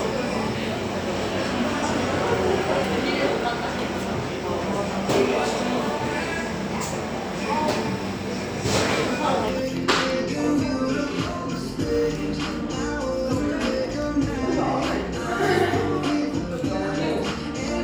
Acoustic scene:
cafe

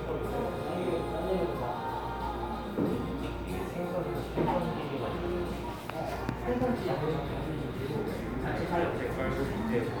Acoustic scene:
cafe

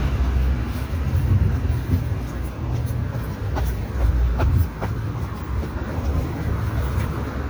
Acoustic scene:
street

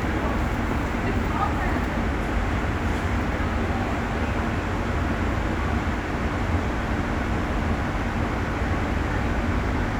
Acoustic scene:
subway station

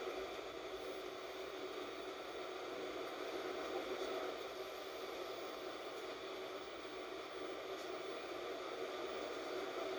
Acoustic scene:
bus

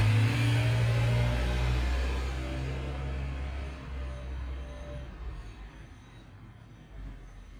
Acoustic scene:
street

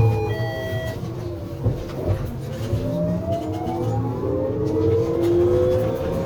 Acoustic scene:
bus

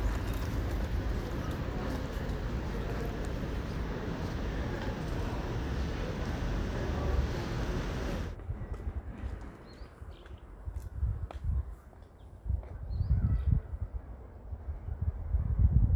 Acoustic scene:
residential area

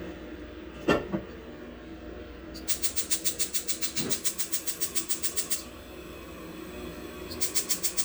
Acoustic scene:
kitchen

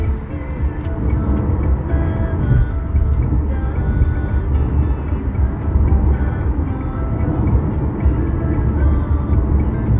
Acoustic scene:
car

